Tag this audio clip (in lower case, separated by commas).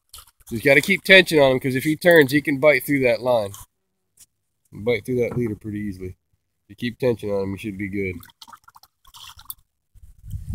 outside, rural or natural, speech